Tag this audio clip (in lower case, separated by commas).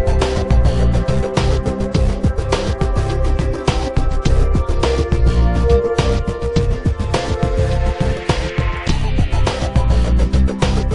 music